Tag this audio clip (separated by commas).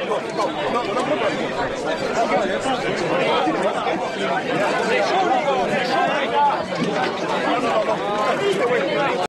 Speech